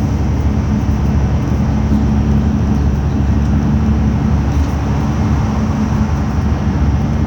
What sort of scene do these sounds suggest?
bus